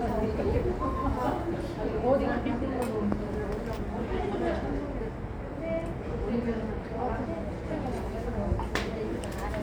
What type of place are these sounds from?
subway station